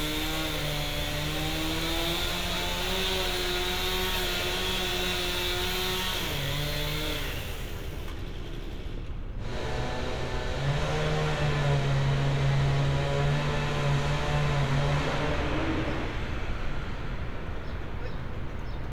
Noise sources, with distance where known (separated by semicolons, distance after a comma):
unidentified powered saw